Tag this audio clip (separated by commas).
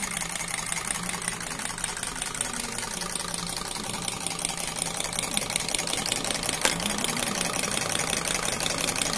car engine starting